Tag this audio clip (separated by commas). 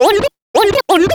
Scratching (performance technique), Musical instrument, Music